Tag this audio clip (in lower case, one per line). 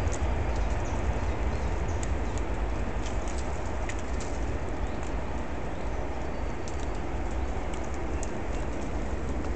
animal